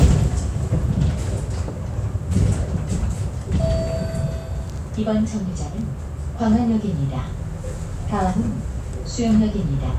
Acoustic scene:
bus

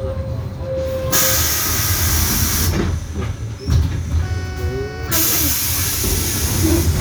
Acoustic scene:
bus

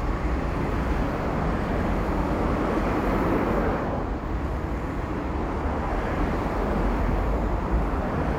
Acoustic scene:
street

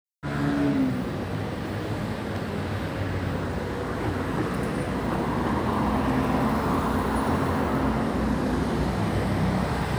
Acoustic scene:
residential area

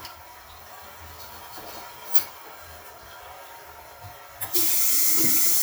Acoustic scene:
restroom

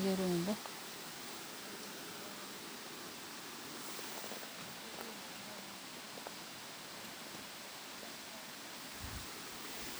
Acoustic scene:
park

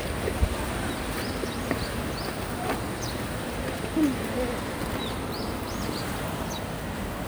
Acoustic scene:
residential area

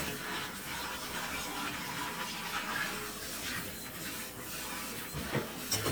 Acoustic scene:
kitchen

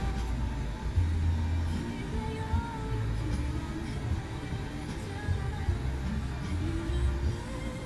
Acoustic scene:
car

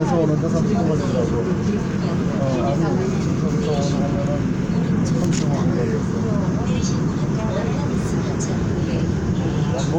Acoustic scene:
subway train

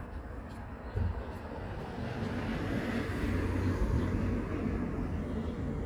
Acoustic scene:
residential area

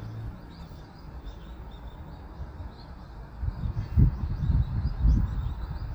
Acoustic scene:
park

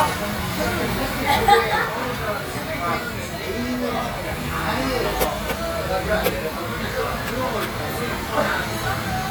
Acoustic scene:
crowded indoor space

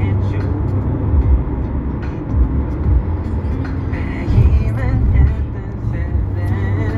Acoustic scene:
car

